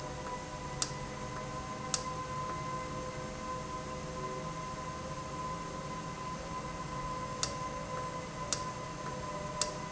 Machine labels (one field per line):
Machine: valve